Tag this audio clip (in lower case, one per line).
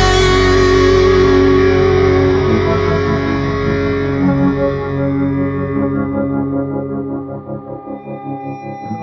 rock music
music